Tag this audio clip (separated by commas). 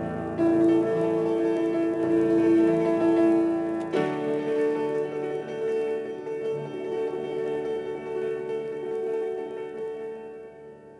Musical instrument, Piano, Keyboard (musical), inside a small room, Music